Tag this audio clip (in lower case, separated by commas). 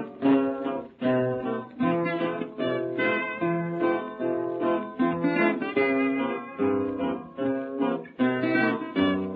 music